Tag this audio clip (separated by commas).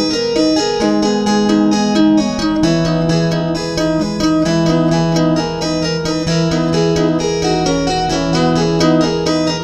Music